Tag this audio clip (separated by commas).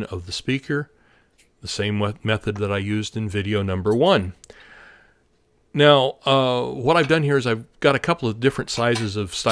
Speech